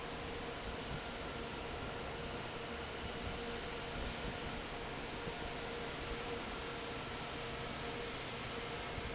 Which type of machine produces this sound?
fan